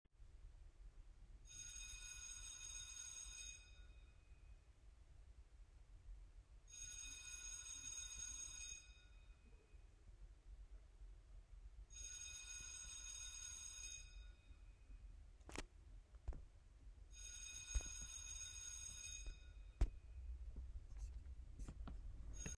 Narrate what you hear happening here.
The bell rang multiple times and I walked towards the door